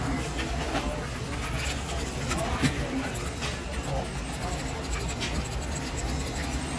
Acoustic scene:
crowded indoor space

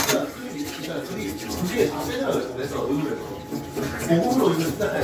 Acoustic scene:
kitchen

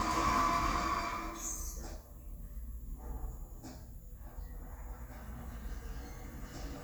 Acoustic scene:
elevator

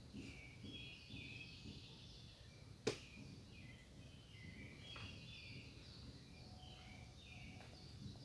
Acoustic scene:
park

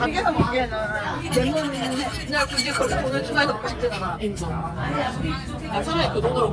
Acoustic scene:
crowded indoor space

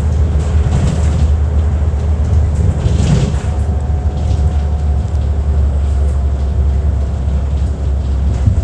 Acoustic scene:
bus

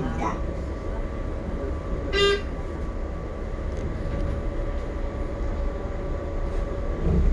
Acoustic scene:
bus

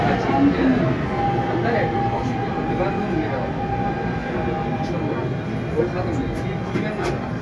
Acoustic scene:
subway train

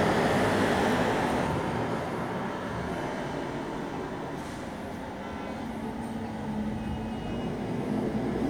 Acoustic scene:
street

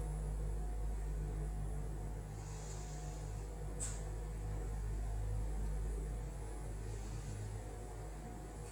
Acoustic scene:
elevator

